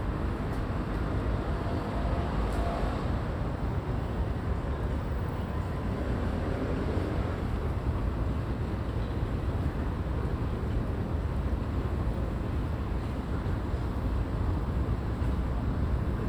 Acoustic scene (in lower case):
residential area